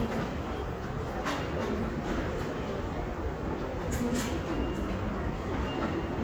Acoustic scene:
crowded indoor space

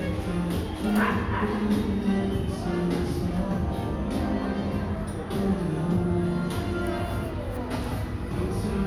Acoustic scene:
crowded indoor space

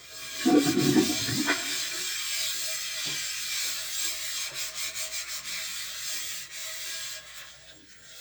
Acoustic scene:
kitchen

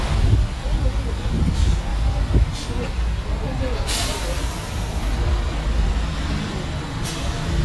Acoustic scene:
street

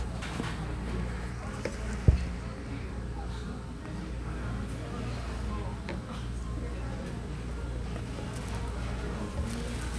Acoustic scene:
cafe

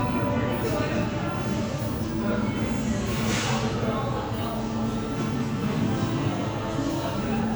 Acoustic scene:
crowded indoor space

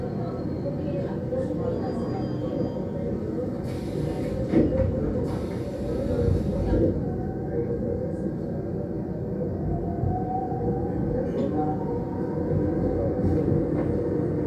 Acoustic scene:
subway train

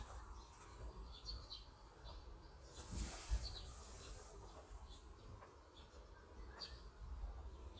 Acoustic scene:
park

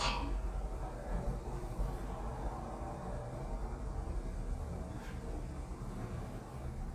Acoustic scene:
elevator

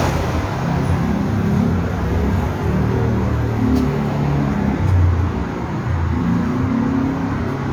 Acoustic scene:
street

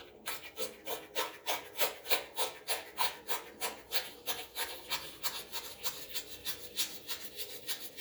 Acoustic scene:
restroom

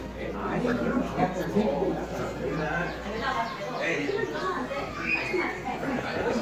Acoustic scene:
crowded indoor space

